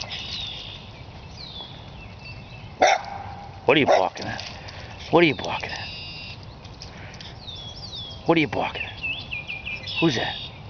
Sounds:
speech, stream

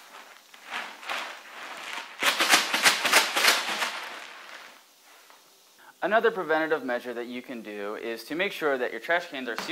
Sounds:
speech

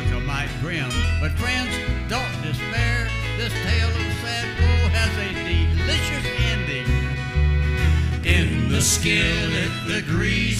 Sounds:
bluegrass, country, song, music

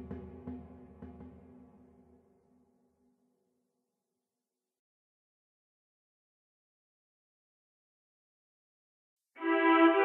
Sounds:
percussion, music

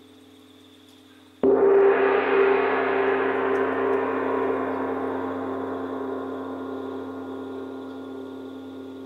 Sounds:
gong

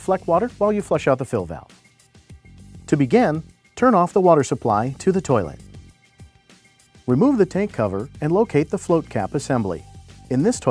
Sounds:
speech, music

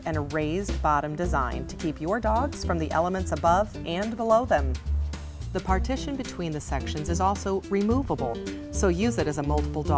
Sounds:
music, speech

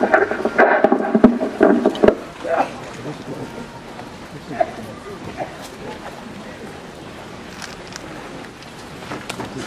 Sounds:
speech

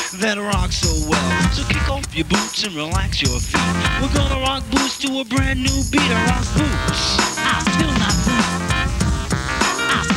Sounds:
rock and roll, punk rock, music

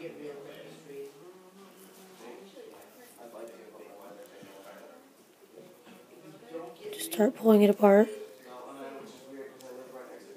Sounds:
speech

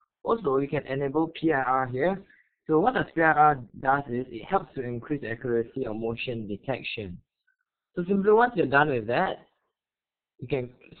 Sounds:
speech

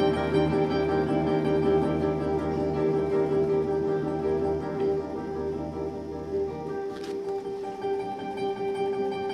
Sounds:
classical music, orchestra, music, musical instrument, guitar

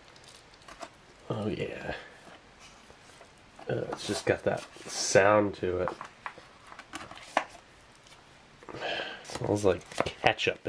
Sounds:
speech, inside a small room

